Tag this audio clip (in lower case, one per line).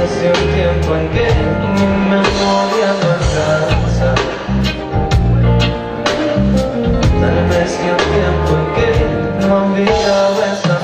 rhythm and blues
music
new-age music